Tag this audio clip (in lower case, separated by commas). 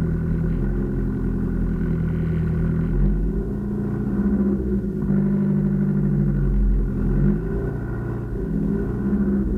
car, outside, urban or man-made, vehicle